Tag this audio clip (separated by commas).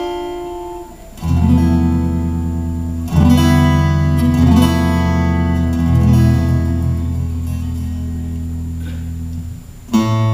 Acoustic guitar, Flamenco, Guitar, Music, Musical instrument, Plucked string instrument